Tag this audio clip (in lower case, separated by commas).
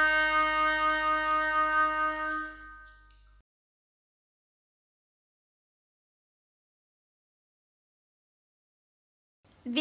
playing oboe